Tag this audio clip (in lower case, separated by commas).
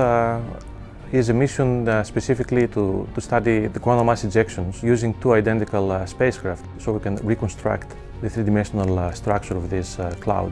music, speech